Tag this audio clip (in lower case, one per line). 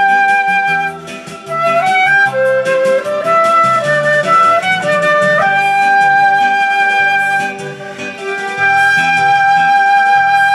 music
wind instrument